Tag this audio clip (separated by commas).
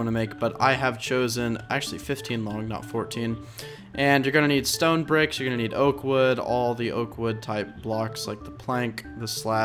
Speech, Music